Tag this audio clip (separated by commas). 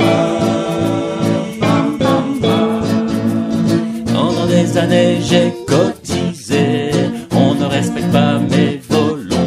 Blues, Music